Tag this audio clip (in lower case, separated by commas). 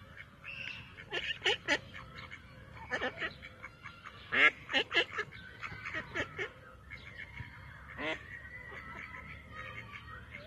duck quacking